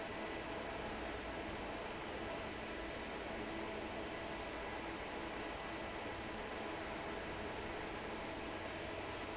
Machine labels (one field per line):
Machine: fan